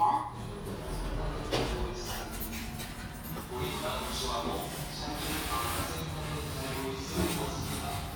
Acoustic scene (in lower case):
elevator